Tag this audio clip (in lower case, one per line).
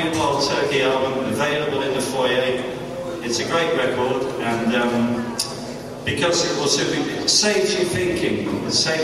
speech